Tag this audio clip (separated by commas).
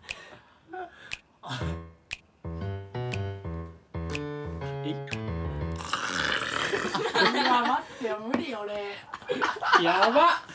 people gargling